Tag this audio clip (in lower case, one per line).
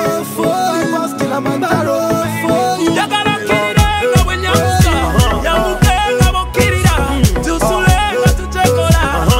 music